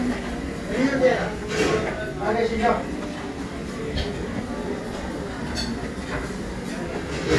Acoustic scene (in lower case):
restaurant